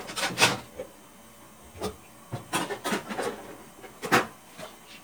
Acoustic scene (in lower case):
kitchen